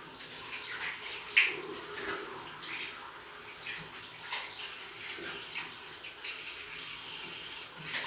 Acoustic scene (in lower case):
restroom